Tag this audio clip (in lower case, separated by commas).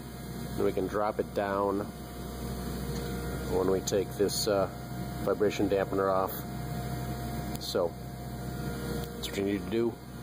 engine, speech, inside a small room